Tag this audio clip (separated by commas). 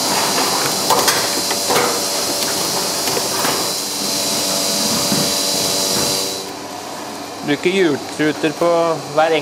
Speech